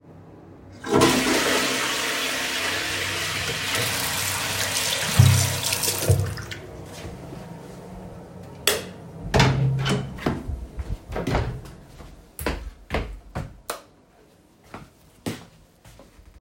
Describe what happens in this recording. I flushed the toilet, while it flushing I turned on the water, turned off the light, opened a door, went to my room, turned on the light